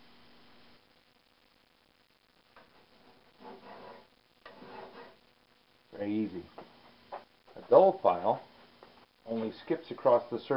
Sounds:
Rub, Filing (rasp)

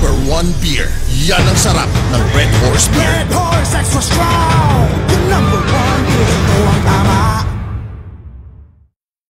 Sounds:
Speech, Music

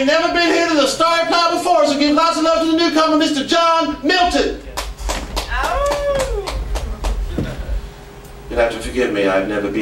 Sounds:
Speech

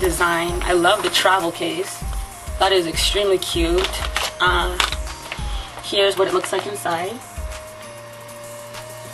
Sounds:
Speech, Music

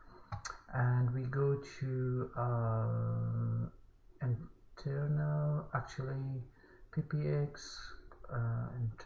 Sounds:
Speech

